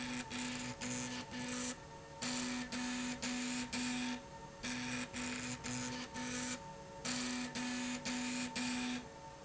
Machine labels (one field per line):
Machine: slide rail